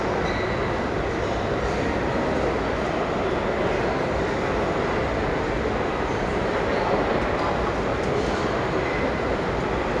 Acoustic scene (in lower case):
crowded indoor space